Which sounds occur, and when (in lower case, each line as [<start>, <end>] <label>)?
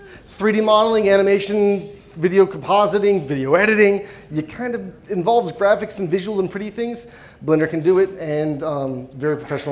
[0.00, 0.23] breathing
[0.00, 9.71] background noise
[0.34, 1.82] man speaking
[1.89, 2.14] breathing
[2.17, 4.00] man speaking
[4.04, 4.24] breathing
[4.27, 7.05] man speaking
[7.11, 7.33] breathing
[7.40, 9.71] man speaking
[7.76, 8.10] surface contact
[9.49, 9.69] surface contact